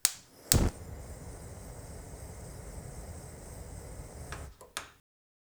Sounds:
Fire

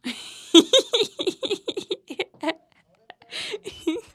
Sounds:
Human voice, Laughter

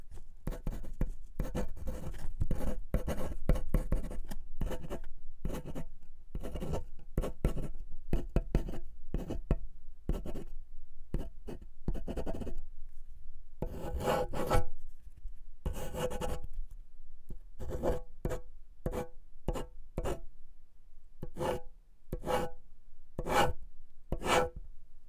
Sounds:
Writing, Domestic sounds

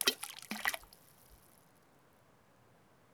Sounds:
Liquid, Splash, Water

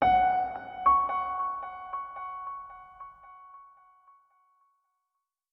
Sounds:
Piano, Music, Keyboard (musical), Musical instrument

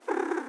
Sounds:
Domestic animals, Purr, Animal, Cat

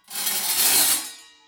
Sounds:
Tools

